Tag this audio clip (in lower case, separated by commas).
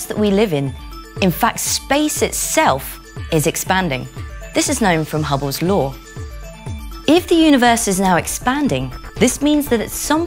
speech, music